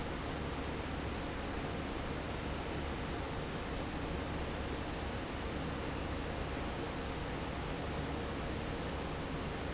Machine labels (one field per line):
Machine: fan